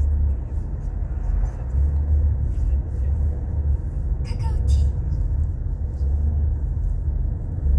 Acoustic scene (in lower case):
car